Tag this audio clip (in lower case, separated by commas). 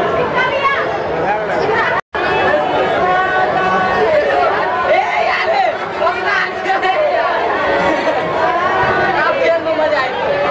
chatter, speech, inside a large room or hall